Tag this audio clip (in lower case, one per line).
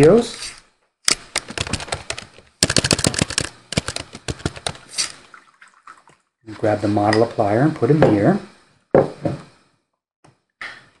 inside a small room
speech